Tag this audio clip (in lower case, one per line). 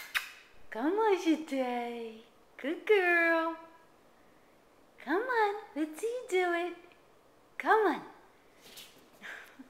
speech